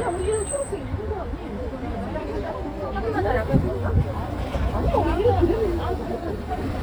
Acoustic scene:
residential area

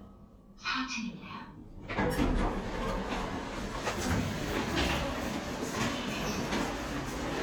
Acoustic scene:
elevator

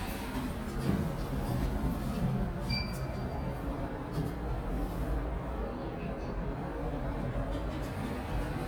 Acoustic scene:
elevator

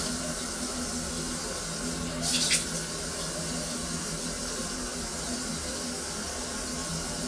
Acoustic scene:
restroom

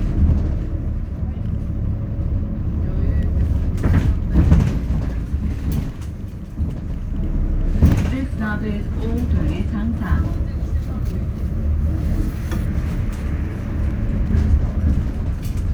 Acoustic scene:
bus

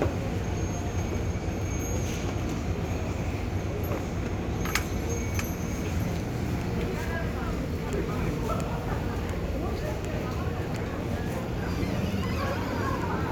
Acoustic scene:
residential area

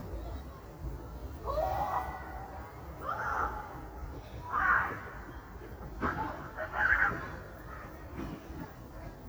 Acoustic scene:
residential area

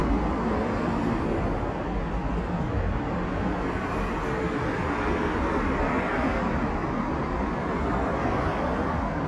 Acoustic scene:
street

